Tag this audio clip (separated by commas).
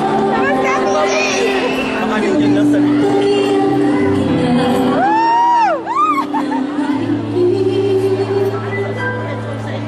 Music, Speech, Female singing